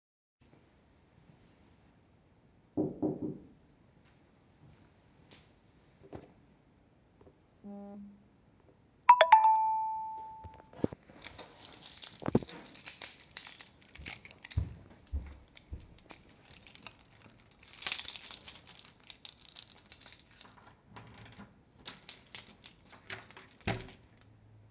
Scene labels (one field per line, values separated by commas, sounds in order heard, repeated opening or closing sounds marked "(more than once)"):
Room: hallway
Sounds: footsteps, phone ringing, keys